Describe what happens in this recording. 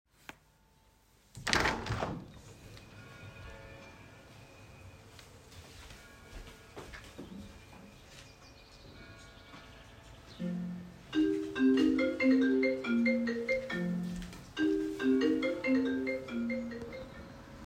I open the window and the birds are whistling, meanwhile the church bell is ringing and while the bell rings, my phone starts ringing as well.